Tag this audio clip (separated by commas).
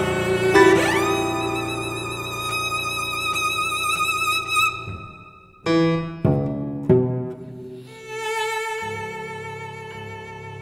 Bowed string instrument, Musical instrument, Music, Cello, Piano